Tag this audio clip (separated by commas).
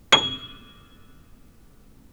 Piano, Music, Musical instrument, Keyboard (musical)